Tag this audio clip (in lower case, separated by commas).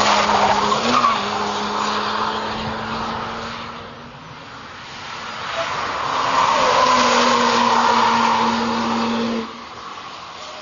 car passing by